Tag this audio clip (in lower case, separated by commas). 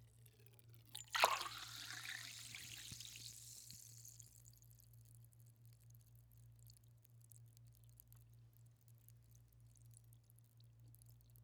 liquid